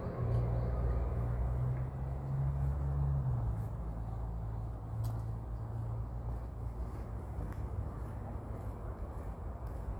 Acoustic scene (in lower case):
residential area